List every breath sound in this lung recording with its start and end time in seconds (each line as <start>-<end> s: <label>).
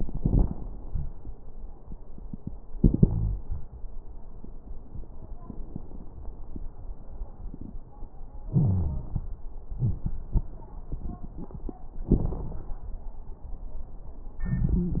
0.00-0.79 s: inhalation
0.00-0.79 s: crackles
0.86-1.06 s: wheeze
2.76-3.40 s: exhalation
2.76-3.40 s: wheeze
8.48-9.21 s: inhalation
8.51-9.10 s: wheeze
9.74-10.01 s: wheeze
12.10-12.85 s: exhalation
12.10-12.85 s: crackles
14.45-15.00 s: inhalation
14.79-15.00 s: wheeze